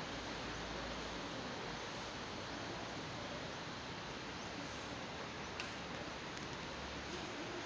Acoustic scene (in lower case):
residential area